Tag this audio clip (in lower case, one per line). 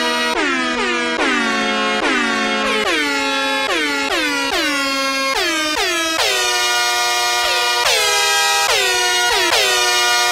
truck horn
music